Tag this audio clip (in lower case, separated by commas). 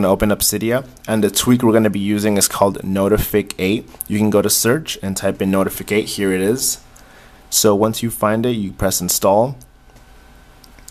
speech